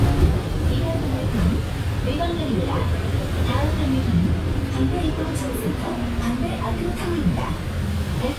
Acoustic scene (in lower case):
bus